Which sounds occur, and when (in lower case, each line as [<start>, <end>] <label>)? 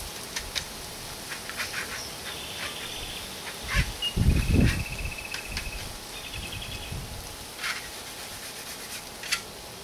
[0.00, 9.83] buzz
[0.32, 0.65] generic impact sounds
[1.27, 2.03] generic impact sounds
[1.95, 2.13] bird call
[2.23, 2.46] generic impact sounds
[2.26, 3.37] bird call
[2.63, 2.94] generic impact sounds
[3.65, 3.92] generic impact sounds
[4.02, 4.20] beep
[4.15, 5.28] wind noise (microphone)
[4.59, 4.83] generic impact sounds
[5.29, 5.41] generic impact sounds
[5.52, 5.66] generic impact sounds
[5.52, 6.05] wind noise (microphone)
[6.17, 7.02] bird call
[6.38, 7.35] wind noise (microphone)
[7.60, 7.91] generic impact sounds
[8.89, 9.04] generic impact sounds
[9.25, 9.49] generic impact sounds